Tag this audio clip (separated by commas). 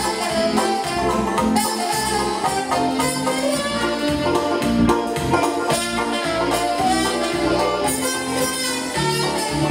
Bluegrass, Music